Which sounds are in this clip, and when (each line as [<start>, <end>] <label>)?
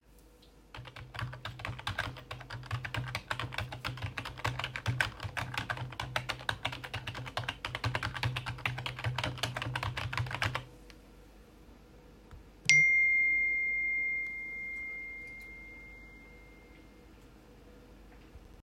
[0.70, 10.68] keyboard typing
[12.65, 17.07] phone ringing